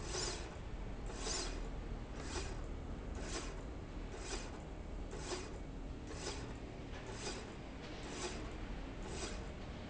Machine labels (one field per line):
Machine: slide rail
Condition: normal